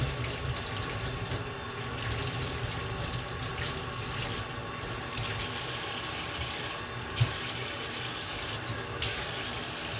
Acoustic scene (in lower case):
kitchen